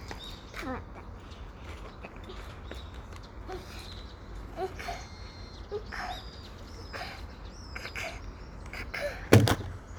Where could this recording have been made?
in a park